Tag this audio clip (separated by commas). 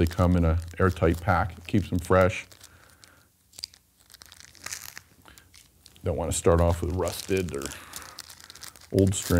Speech